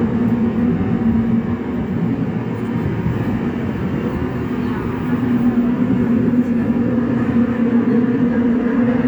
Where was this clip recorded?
on a subway train